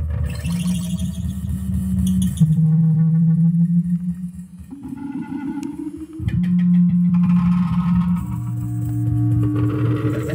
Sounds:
synthesizer

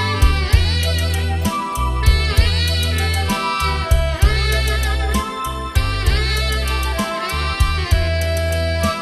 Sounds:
music
soundtrack music

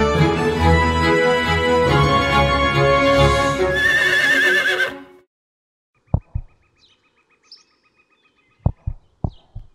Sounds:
horse neighing

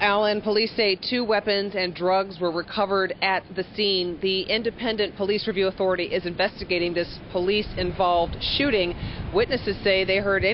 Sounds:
speech

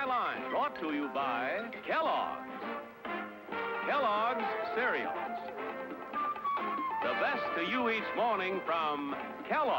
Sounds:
speech

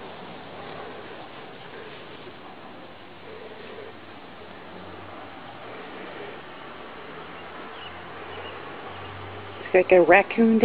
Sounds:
speech
outside, urban or man-made

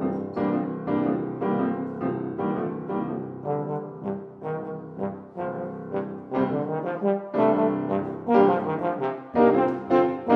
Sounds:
trumpet
playing piano
piano
trombone
keyboard (musical)
music

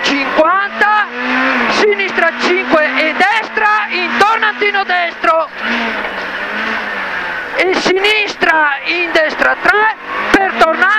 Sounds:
speech
motor vehicle (road)
vehicle
car

